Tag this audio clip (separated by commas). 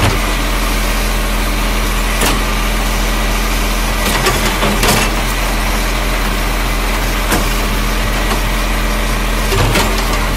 Truck, Vehicle